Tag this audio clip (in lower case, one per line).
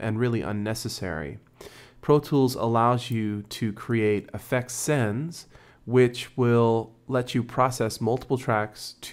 speech